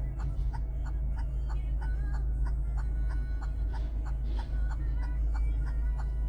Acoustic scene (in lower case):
car